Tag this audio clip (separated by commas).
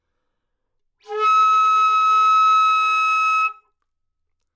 Music, woodwind instrument, Musical instrument